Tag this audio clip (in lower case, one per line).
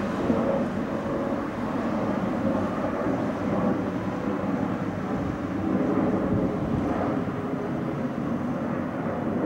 airplane flyby